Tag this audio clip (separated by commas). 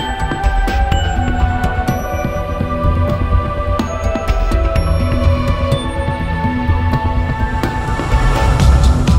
Music